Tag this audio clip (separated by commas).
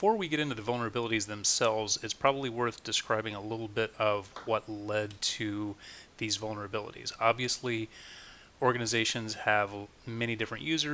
Speech